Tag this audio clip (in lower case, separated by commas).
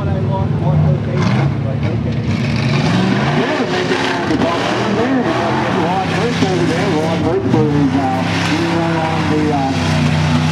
speech